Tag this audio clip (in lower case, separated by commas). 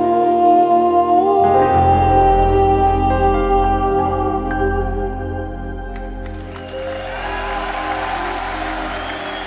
music, singing, crowd, musical instrument, new-age music